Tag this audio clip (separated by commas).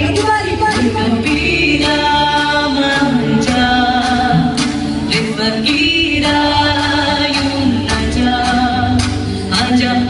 Female singing, Music